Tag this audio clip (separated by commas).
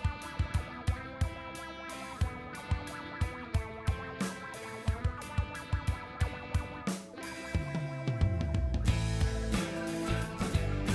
Music